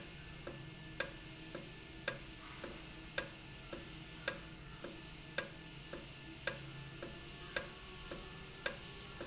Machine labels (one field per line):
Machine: valve